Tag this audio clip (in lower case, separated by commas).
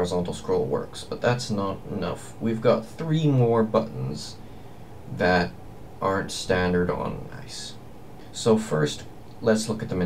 speech